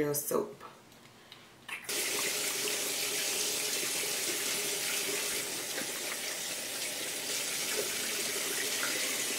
She is talking, water is splashing